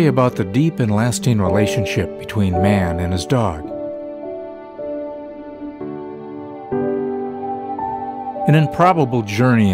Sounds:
speech, music

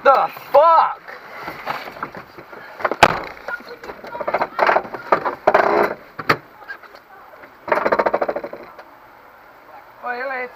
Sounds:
speech

